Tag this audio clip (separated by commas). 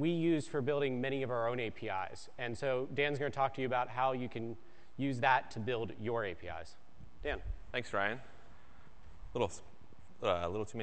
Speech